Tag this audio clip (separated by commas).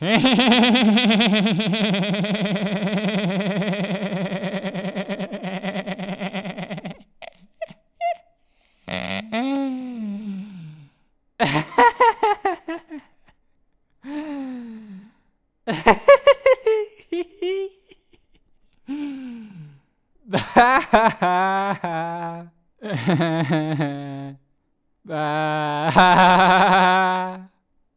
Laughter, Giggle, Human voice